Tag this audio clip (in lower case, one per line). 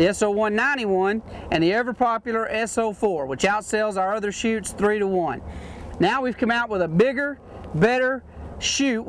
speech